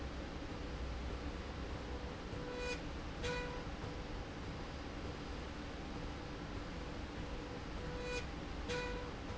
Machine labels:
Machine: slide rail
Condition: normal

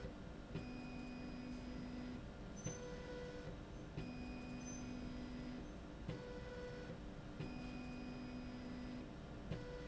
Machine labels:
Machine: slide rail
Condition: normal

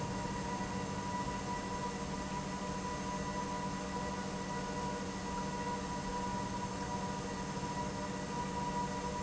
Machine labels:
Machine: pump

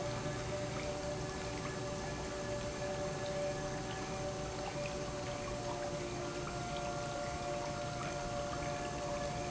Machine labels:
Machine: pump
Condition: normal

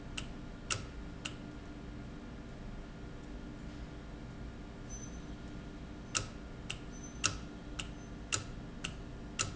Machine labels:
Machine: valve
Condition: normal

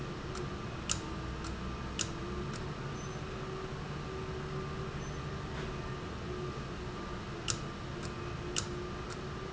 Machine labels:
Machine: valve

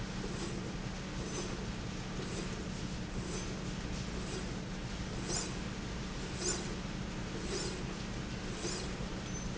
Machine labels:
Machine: slide rail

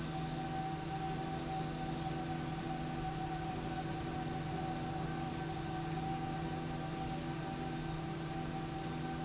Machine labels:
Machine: slide rail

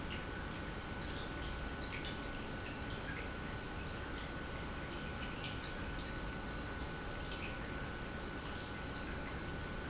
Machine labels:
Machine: pump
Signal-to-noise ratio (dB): 0 dB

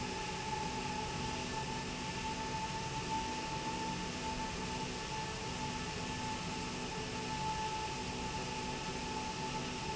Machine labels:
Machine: slide rail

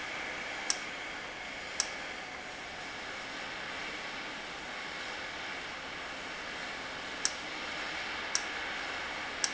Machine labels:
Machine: valve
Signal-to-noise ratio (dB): -6 dB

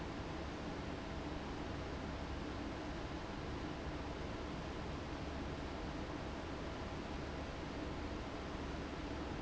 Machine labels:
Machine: fan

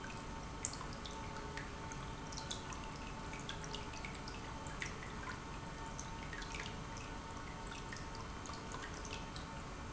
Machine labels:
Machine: pump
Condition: normal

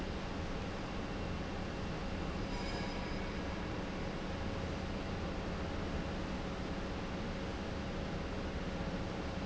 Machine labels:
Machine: pump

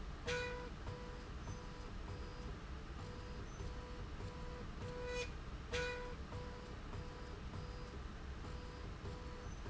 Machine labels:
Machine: slide rail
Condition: normal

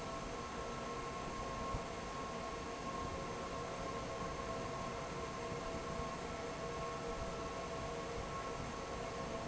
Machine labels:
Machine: fan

